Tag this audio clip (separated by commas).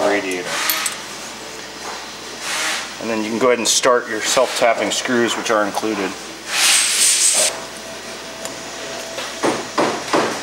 Speech